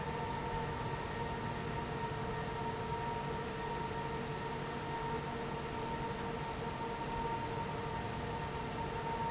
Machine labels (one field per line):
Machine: fan